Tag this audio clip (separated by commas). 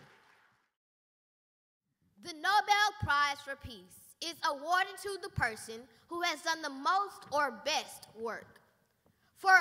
Child speech, Narration, Speech